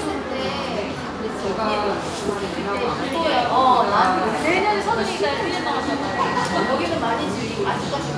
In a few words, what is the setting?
cafe